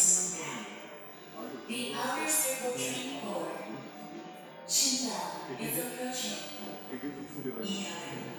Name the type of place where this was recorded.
subway station